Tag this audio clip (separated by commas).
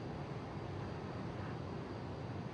Vehicle, Boat